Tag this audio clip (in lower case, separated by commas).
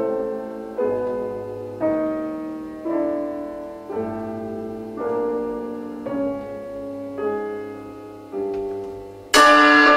percussion, music